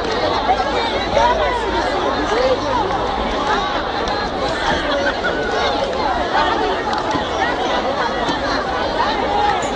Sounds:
speech
outside, urban or man-made

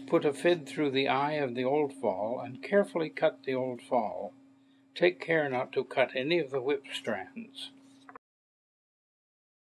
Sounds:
speech

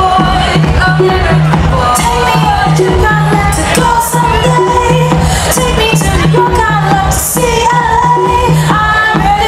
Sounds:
music

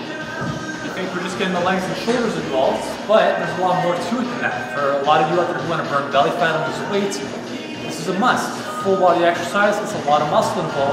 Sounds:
inside a large room or hall
speech
music

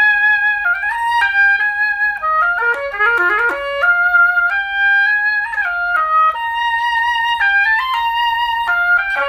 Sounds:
playing oboe

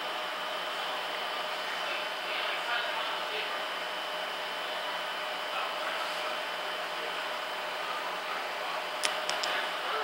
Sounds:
speech

